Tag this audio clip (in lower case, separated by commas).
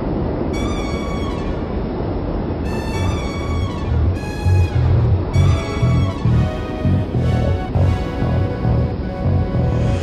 music